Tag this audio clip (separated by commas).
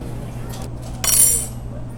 home sounds, Cutlery